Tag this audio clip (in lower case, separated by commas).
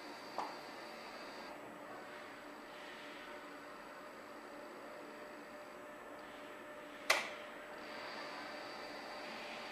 sliding door